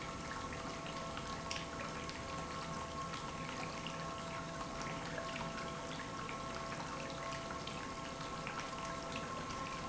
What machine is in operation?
pump